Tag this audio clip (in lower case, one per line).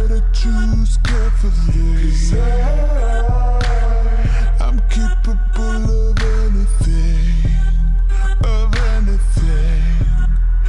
music